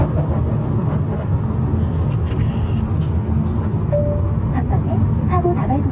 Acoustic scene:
car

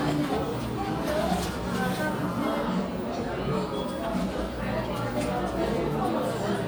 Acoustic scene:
crowded indoor space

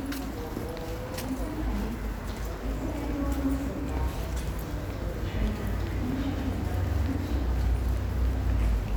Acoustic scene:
subway station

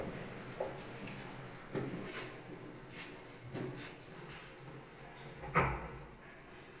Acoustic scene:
restroom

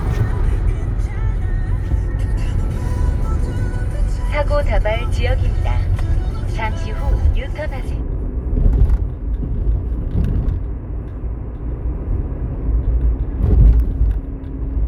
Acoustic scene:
car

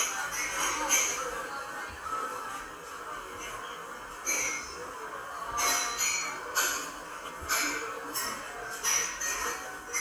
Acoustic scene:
cafe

